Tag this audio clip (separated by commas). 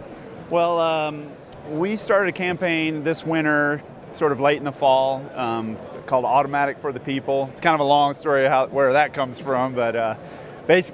Speech